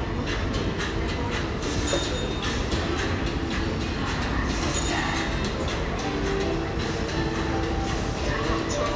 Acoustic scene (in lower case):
subway station